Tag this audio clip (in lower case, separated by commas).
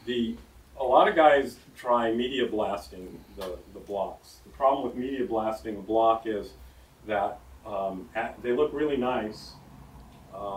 speech